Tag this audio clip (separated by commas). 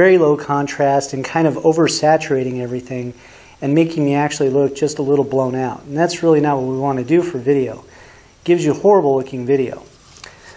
Speech, inside a small room